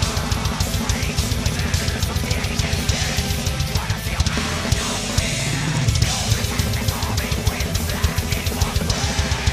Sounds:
Music, Guitar, Musical instrument

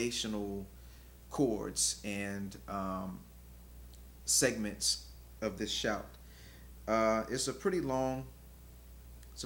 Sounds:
Speech

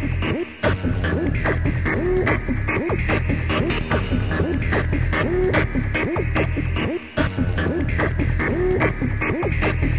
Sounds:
Music

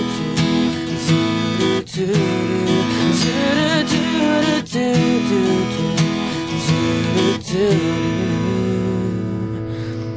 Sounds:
Music, Male singing

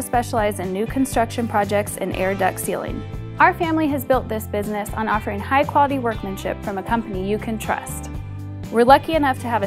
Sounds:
Speech, Music

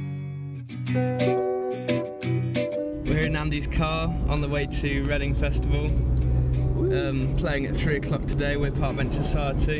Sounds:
Car, Vehicle

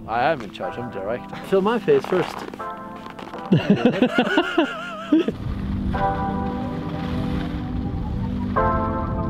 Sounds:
skiing

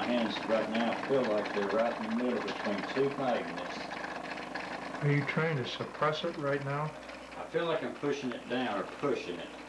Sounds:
inside a small room, Speech

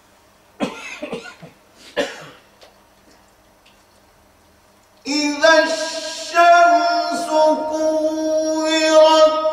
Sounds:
Cough

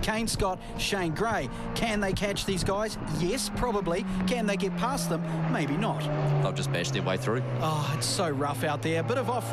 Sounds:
Vehicle, Speech, Truck

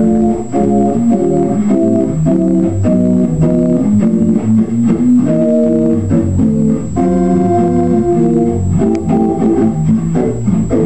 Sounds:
Hammond organ, Music, Organ

